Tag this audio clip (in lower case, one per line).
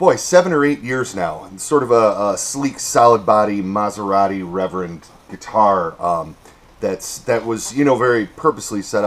speech